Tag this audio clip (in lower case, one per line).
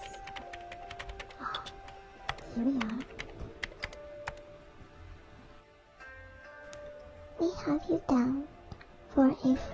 sound effect
speech
music